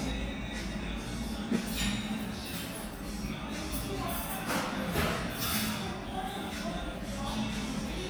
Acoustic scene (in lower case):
cafe